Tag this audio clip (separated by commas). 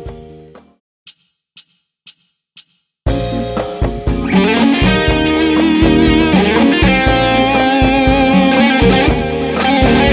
Plucked string instrument, Heavy metal, Bass guitar, Guitar, Musical instrument, Music, Drum machine, playing bass guitar